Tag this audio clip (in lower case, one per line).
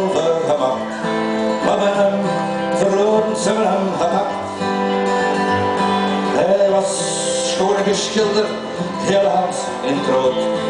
music